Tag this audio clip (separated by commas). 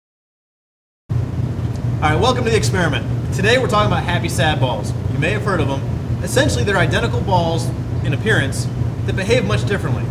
Speech